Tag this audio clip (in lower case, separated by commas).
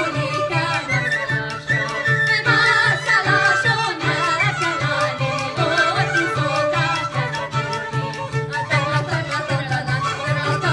music, middle eastern music, fiddle, singing, musical instrument